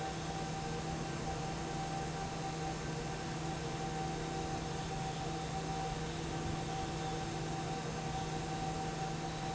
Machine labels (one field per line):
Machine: fan